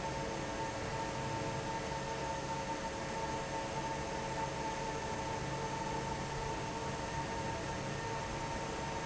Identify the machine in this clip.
fan